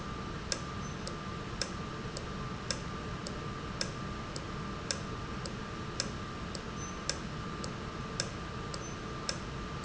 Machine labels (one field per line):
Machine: valve